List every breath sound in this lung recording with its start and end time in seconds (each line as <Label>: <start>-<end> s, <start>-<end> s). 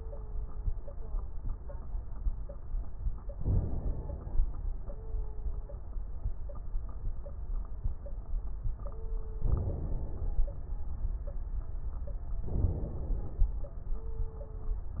Inhalation: 3.32-4.39 s, 9.38-10.45 s, 12.46-13.53 s
Crackles: 3.32-4.39 s, 9.38-10.45 s, 12.46-13.53 s